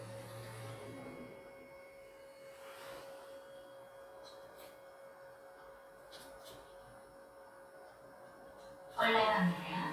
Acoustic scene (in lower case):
elevator